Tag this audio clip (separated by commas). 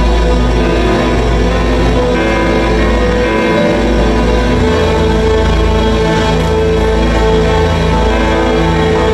Music